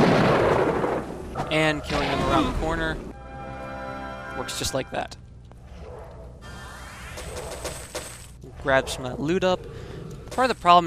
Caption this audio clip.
Guys are speaking followed by guns shot sound